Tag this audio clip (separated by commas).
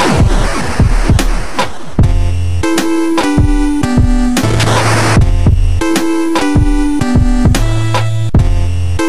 Scratch, Music